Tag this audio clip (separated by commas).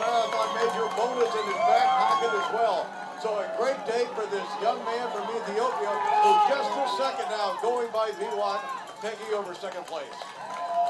outside, urban or man-made, Speech